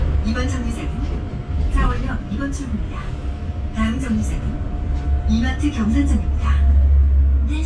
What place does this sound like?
bus